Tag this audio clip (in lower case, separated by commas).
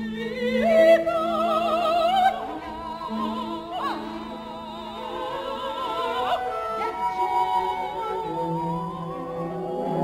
music